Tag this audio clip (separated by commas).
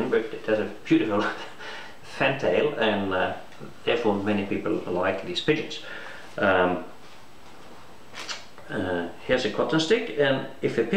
Speech